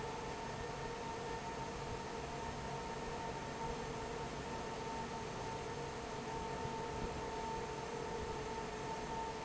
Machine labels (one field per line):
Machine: fan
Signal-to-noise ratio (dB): 0 dB